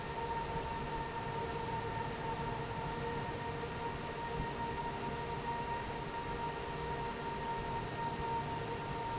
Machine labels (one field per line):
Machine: fan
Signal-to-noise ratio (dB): -6 dB